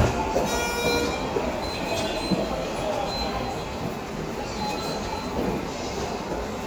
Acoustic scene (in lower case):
subway station